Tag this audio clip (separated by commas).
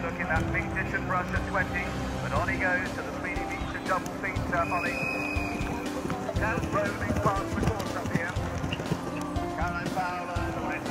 Music, Horse, Clip-clop, Country, Animal, Speech